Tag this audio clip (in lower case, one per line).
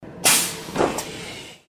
rail transport
train
vehicle